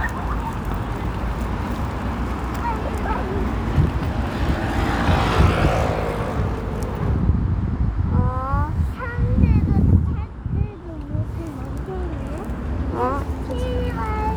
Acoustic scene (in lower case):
street